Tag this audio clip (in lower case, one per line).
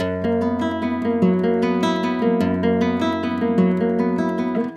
plucked string instrument
musical instrument
music